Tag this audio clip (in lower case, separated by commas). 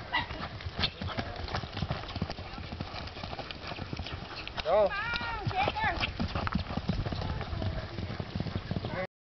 clip-clop, animal, speech, horse